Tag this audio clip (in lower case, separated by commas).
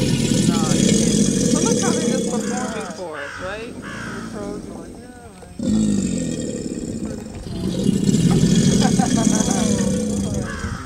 alligators